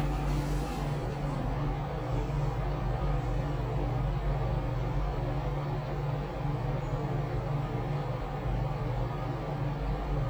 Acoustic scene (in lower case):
elevator